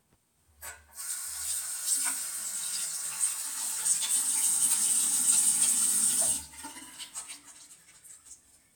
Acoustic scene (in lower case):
restroom